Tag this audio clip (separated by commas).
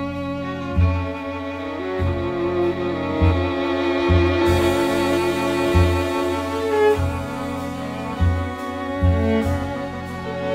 Bowed string instrument, Music